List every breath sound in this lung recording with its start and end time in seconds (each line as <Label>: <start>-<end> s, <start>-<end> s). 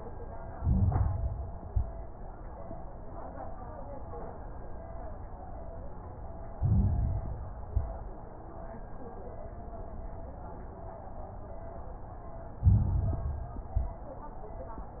Inhalation: 0.45-1.57 s, 1.59-2.05 s, 6.50-7.62 s, 12.56-13.66 s
Exhalation: 1.59-2.05 s, 7.68-8.13 s, 13.68-14.14 s
Crackles: 0.45-1.57 s, 1.59-2.05 s, 6.50-7.62 s, 7.68-8.13 s, 12.56-13.66 s, 13.68-14.14 s